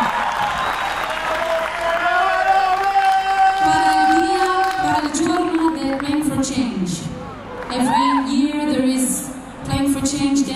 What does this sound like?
An audience giving a round of applause for a candidate